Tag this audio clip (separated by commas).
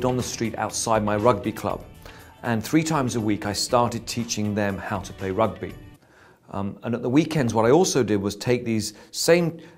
Speech, Music